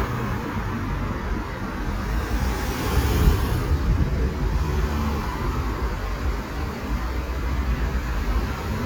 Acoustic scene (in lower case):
street